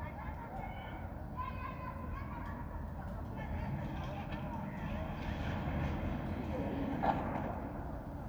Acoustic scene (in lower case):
residential area